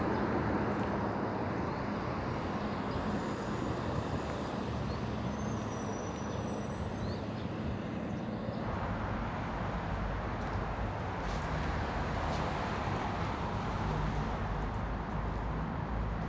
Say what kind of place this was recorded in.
street